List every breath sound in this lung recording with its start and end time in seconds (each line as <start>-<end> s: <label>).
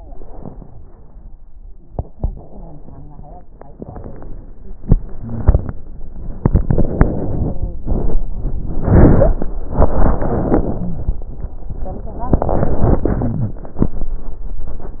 0.00-0.76 s: inhalation
0.77-1.87 s: exhalation
1.86-3.45 s: crackles
1.89-3.46 s: inhalation
3.44-4.84 s: exhalation
3.46-4.88 s: crackles
4.85-6.37 s: inhalation
5.16-5.78 s: wheeze
6.36-8.42 s: exhalation
7.37-7.84 s: wheeze
8.44-9.65 s: inhalation
9.07-9.67 s: stridor
9.66-11.53 s: exhalation
10.31-11.53 s: wheeze
11.82-13.73 s: inhalation
13.13-13.73 s: wheeze